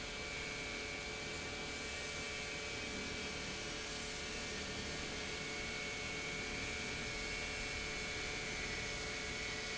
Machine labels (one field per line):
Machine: pump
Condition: normal